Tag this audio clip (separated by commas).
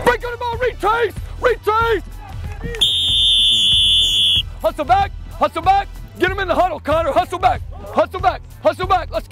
Speech, outside, urban or man-made, Music